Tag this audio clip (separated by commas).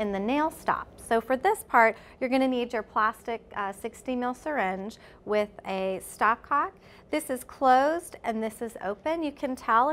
Speech